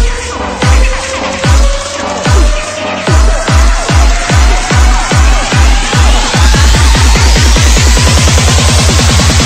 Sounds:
Disco, Music, Soundtrack music

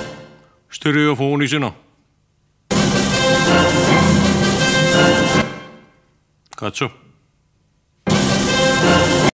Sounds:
Music, Speech

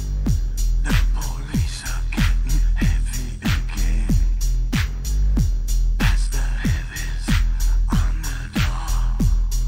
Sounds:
Music

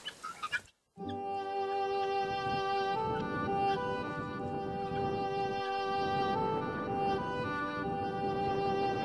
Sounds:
Bird, bird song

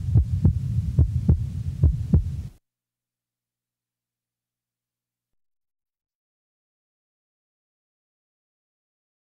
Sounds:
heart sounds

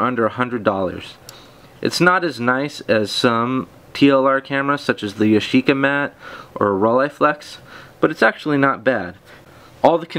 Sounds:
Speech

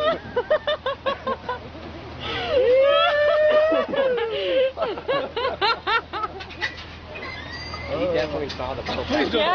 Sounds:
Speech, outside, rural or natural

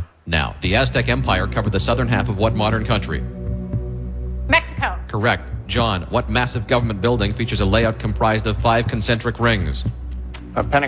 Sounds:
Speech, Music

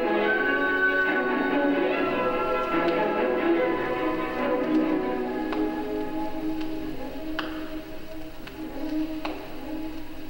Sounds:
Music, Piano

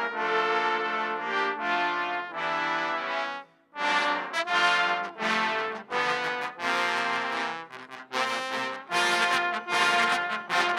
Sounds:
playing trombone

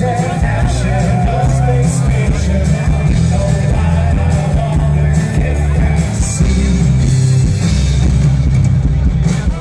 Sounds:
Male singing, Music, Speech

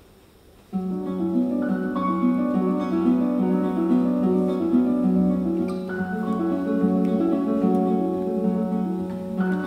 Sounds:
Music

